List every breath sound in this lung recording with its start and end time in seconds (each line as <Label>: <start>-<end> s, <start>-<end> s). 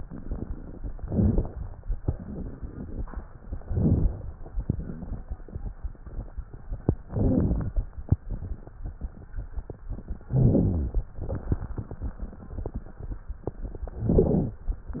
Inhalation: 0.97-1.63 s, 3.62-4.29 s, 7.06-7.80 s, 10.32-11.06 s, 14.06-14.67 s
Exhalation: 2.03-3.08 s, 4.63-5.45 s
Crackles: 0.97-1.63 s, 2.03-3.08 s, 3.62-4.29 s, 4.63-5.45 s, 7.06-7.80 s, 10.32-11.06 s, 14.06-14.67 s